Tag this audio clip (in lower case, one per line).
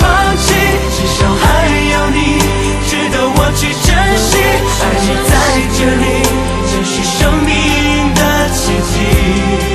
pop music